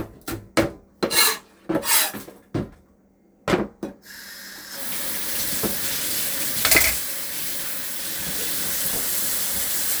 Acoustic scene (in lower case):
kitchen